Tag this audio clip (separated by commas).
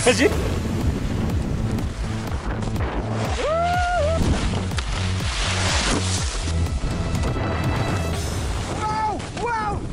skiing